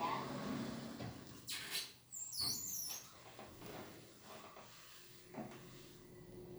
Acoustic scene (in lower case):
elevator